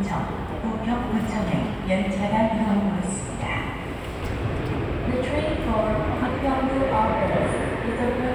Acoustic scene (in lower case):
subway station